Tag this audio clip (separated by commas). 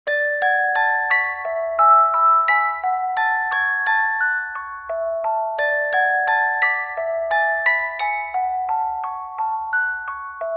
Music